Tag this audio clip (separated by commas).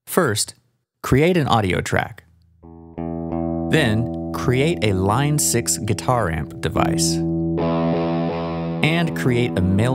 Plucked string instrument, Electric guitar, Speech, Music, Guitar, Musical instrument